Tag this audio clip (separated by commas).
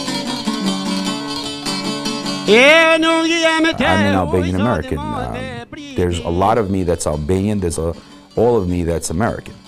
Pizzicato